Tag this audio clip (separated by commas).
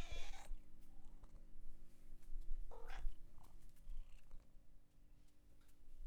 Purr, Cat, Domestic animals, Animal, Meow